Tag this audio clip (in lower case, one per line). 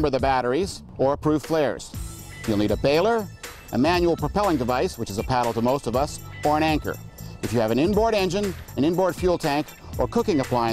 music
speech